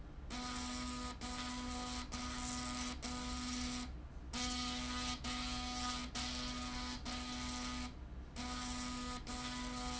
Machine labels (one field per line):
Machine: slide rail